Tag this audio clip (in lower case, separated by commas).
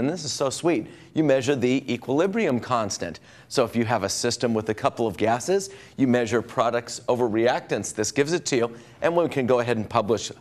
speech